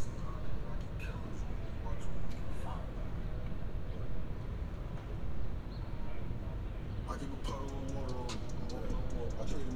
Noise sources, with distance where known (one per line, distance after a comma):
music from a fixed source, near